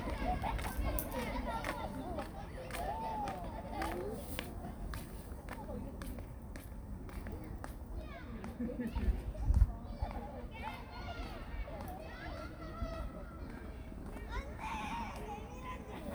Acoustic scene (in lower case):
park